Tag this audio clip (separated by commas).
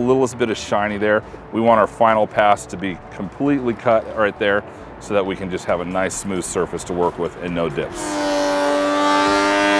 planing timber